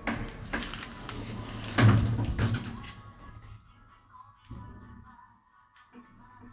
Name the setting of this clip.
elevator